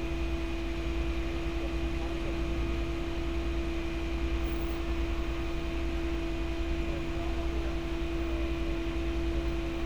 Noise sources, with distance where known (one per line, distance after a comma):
person or small group talking, far